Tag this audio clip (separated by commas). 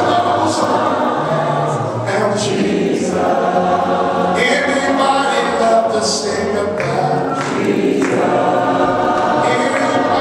Gospel music, Singing